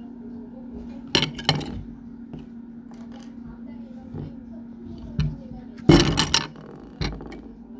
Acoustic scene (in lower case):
kitchen